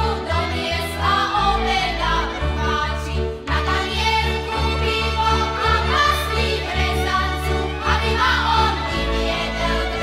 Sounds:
music

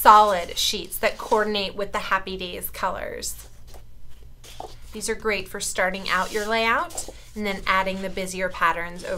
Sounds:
speech

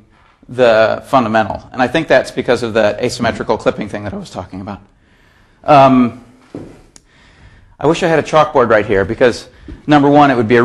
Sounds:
speech

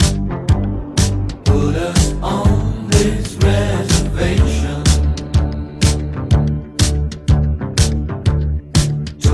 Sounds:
music

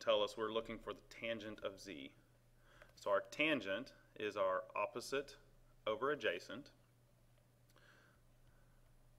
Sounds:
speech

